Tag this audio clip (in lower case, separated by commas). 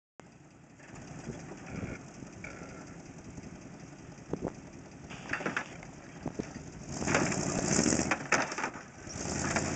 car, outside, rural or natural, vehicle